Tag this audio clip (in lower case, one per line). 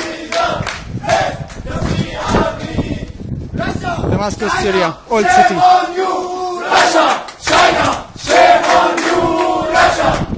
speech
outside, urban or man-made